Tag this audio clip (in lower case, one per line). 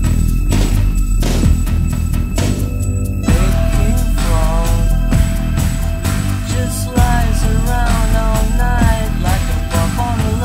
music